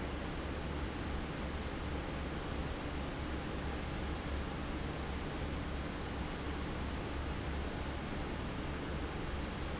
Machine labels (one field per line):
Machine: fan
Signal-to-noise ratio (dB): -6 dB